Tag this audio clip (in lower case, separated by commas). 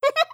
laughter, human voice, giggle